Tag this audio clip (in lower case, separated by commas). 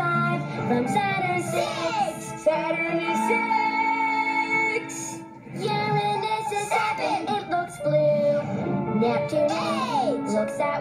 music, exciting music